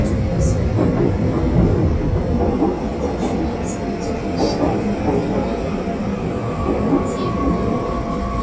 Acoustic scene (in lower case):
subway train